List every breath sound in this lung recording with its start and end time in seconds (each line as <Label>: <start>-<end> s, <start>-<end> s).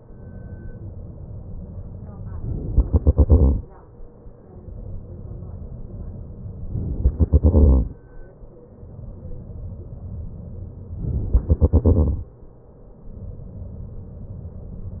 Inhalation: 2.41-2.82 s, 6.77-7.16 s, 11.03-11.36 s
Exhalation: 2.83-3.98 s, 7.15-8.43 s, 11.36-12.93 s